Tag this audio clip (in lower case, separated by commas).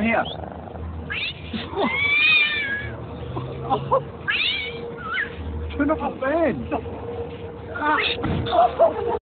meow, speech, animal, domestic animals, cat, music